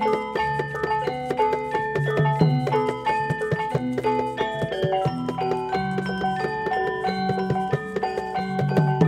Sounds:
music, outside, rural or natural

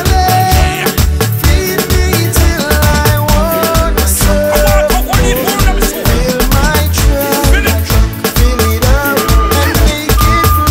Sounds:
afrobeat, music

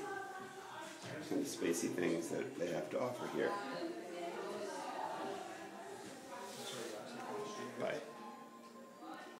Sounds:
speech

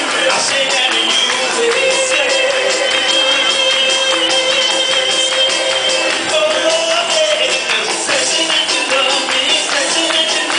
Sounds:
male singing, music

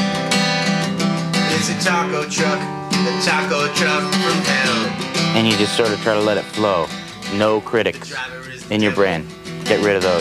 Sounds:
music, speech

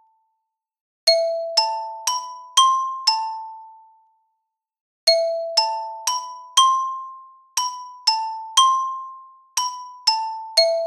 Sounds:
playing glockenspiel

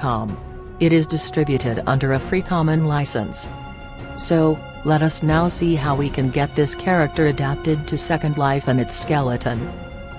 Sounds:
speech, music

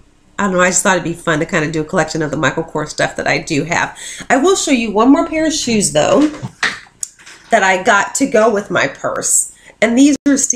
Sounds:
speech, inside a small room

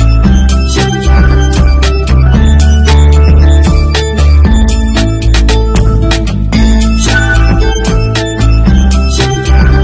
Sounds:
theme music, happy music, music

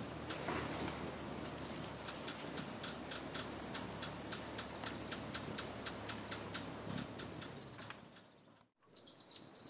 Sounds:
bird

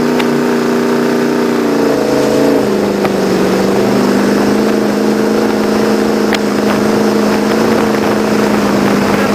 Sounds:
boat, vehicle, motorboat, speedboat acceleration

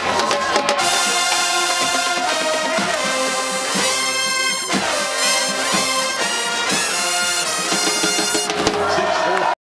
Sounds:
music, speech

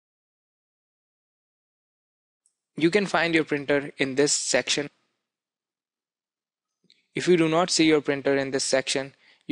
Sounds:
speech

